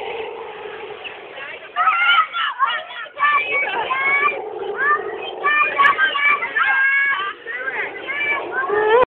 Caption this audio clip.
Inaudible speech of children